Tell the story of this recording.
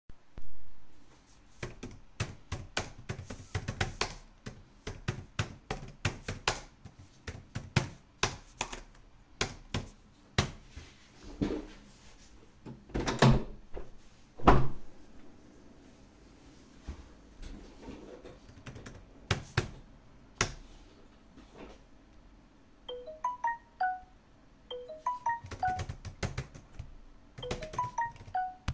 I was typing on the keyboard after that I standed up to open the window to get some fresh air then I intend to continue typing and I get three notification on my mobile .